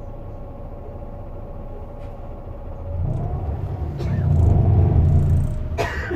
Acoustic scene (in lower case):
bus